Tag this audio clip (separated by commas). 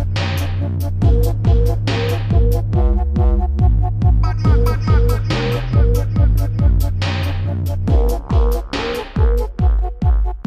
Electronic music, Music, Dubstep